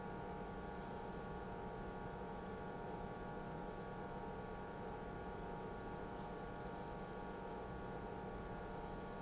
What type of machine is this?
pump